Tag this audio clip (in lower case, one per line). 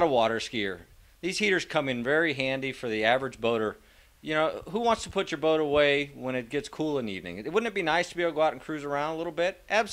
speech